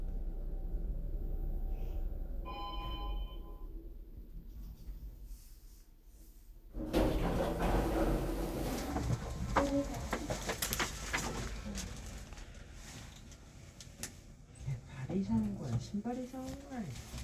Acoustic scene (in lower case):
elevator